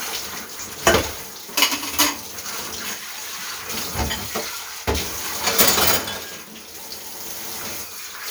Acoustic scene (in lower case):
kitchen